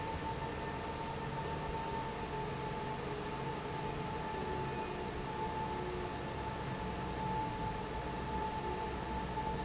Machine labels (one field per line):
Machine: fan